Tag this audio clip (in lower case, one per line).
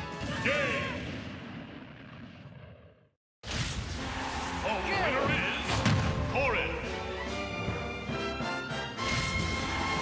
speech
music